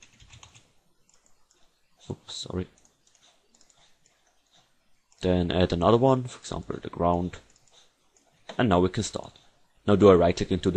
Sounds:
speech

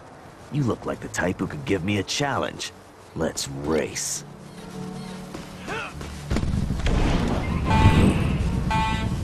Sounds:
speech

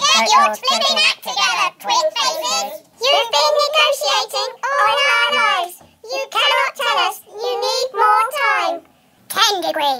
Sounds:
kid speaking, speech

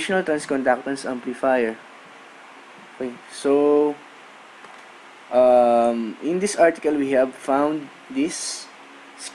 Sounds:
speech

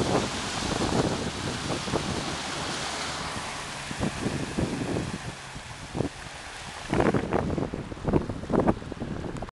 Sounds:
stream

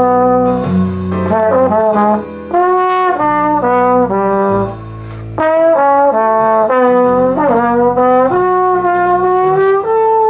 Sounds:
playing trombone

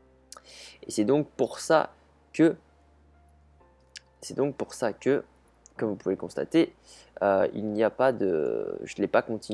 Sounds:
speech

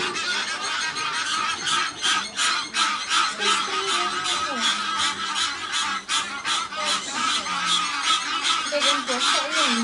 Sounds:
honk, goose honking, speech

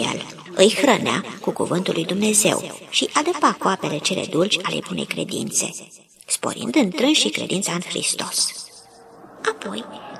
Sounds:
speech

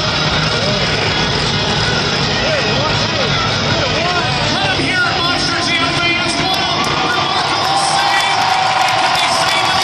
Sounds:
music, truck, speech, vehicle

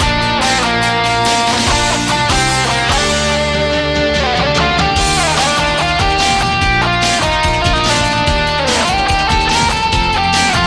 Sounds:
strum, musical instrument, music, acoustic guitar, plucked string instrument, guitar

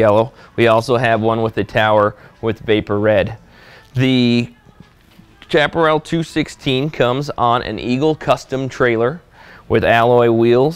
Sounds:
music, speech

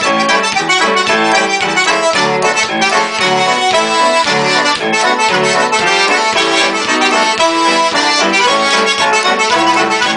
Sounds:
playing accordion, musical instrument, accordion, music

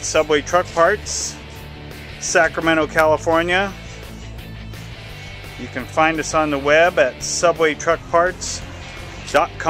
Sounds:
music, speech

